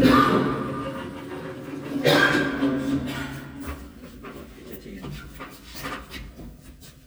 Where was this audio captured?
in an elevator